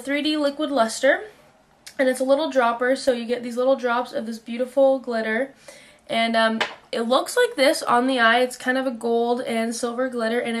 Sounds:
speech

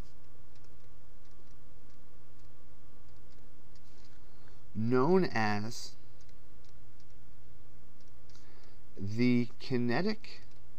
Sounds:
speech

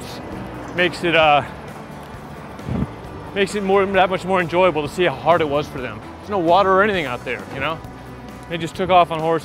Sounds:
speech
music

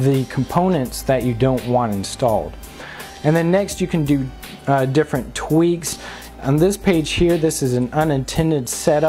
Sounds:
speech

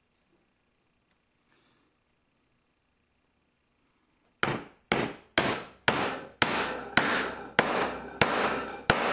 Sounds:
tools
inside a small room

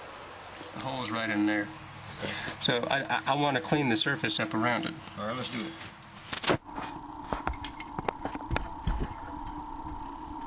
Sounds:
speech

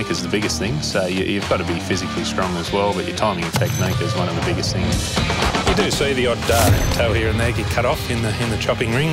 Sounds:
speech
music

